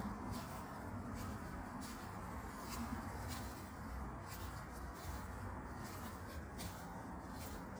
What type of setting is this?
park